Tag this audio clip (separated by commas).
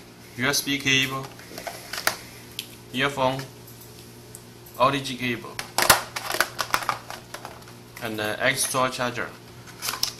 Speech